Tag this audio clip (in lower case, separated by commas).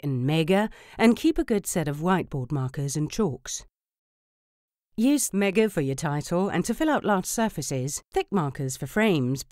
speech